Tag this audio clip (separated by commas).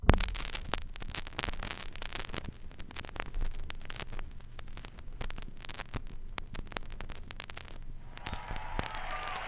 Crackle